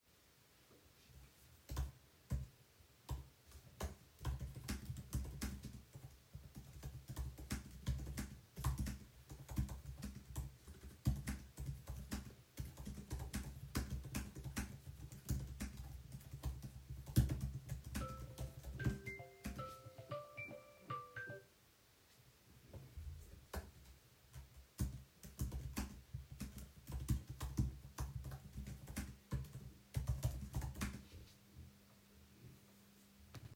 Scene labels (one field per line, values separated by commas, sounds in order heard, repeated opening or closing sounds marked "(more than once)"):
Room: office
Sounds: keyboard typing, phone ringing